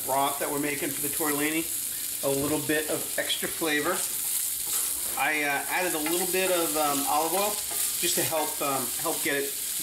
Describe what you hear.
A man talking and sizzling followed by scraping